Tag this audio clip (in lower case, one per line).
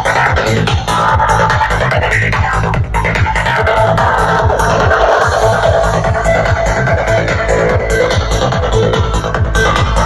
music